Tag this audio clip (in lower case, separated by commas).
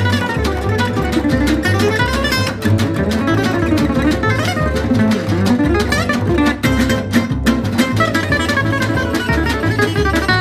music, flamenco, acoustic guitar, guitar, plucked string instrument, musical instrument